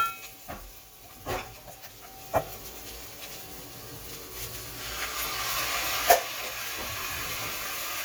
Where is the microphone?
in a kitchen